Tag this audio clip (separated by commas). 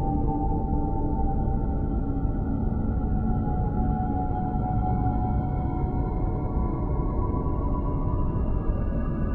Music, Scary music